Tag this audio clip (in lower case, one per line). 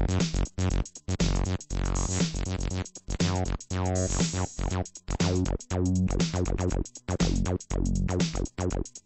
musical instrument
music
keyboard (musical)
synthesizer